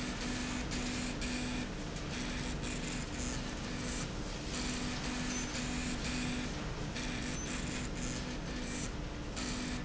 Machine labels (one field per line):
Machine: slide rail